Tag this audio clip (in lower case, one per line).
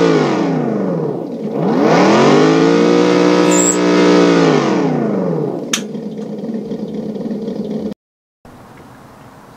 medium engine (mid frequency)